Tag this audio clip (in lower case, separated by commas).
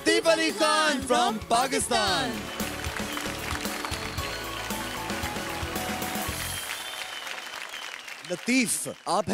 speech, music